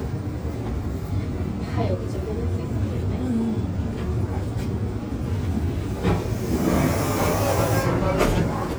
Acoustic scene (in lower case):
subway train